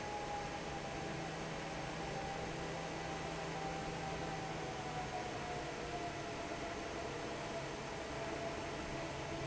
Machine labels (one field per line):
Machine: fan